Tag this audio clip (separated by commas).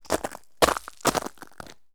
footsteps